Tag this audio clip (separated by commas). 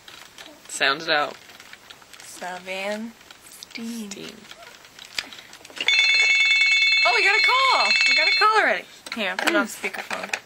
Speech